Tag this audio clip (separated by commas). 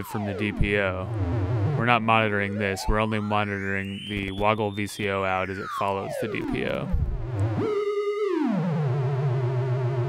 Music, Speech